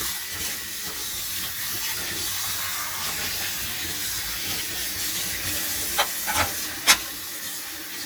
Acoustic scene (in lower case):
kitchen